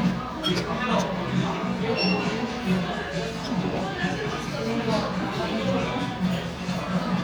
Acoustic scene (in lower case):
cafe